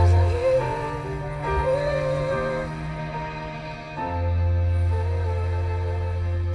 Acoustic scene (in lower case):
car